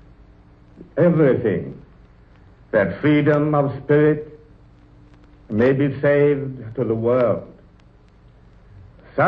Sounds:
Speech, Male speech

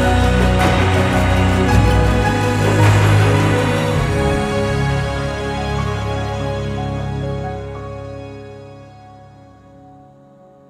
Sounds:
airplane

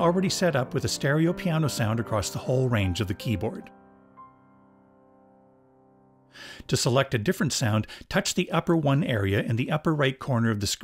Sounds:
Music, Speech

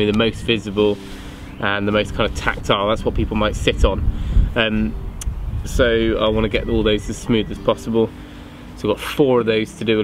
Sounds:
Speech, Music

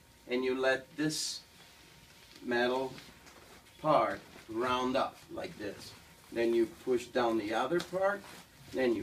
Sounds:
Speech

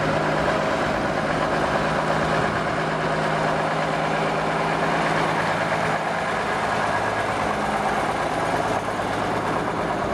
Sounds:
Bus, Vehicle

